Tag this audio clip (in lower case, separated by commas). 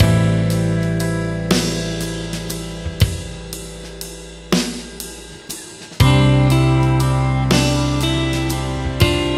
cymbal, music, hi-hat